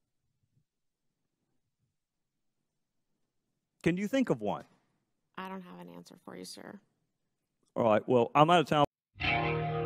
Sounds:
speech, music, silence

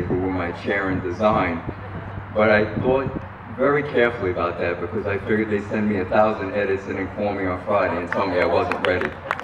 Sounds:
man speaking, speech

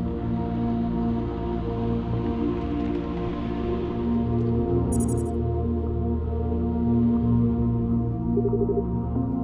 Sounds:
music

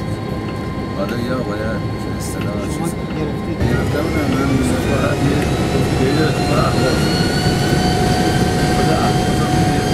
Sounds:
hubbub, speech

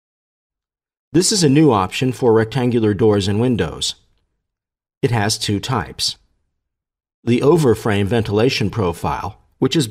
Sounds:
speech

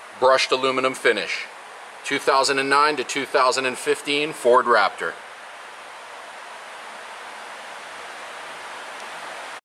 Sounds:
speech

